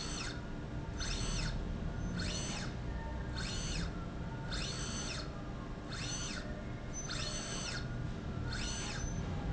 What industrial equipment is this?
slide rail